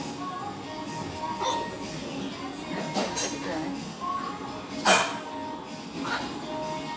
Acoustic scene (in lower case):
restaurant